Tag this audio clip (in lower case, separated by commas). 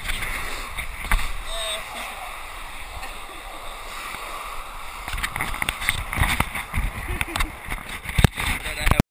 speech